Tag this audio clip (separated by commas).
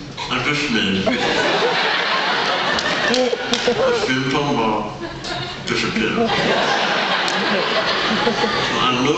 Speech